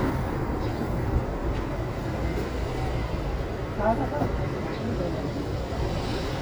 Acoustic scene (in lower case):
residential area